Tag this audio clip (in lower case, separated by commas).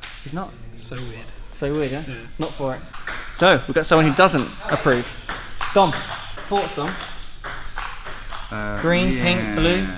playing table tennis